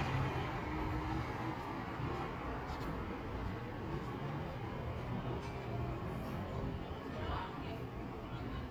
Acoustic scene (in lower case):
residential area